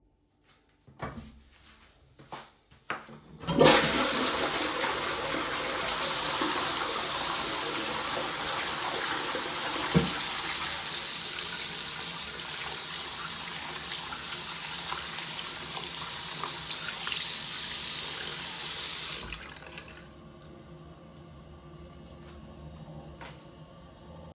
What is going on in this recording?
The phone was placed statically on the sink in a bathroom. The person got up from the toilet and flushed it and while the toilet was still flushing the tap was turned on for handwashing. The tap was then turned off and at the end of the recording the dull sound of the toilet tank refilling with water was audible.